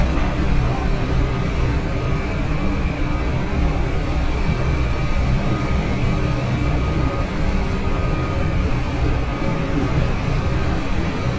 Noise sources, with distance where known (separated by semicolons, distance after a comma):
reverse beeper